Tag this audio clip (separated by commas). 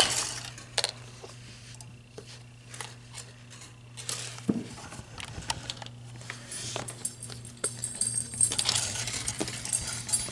sliding door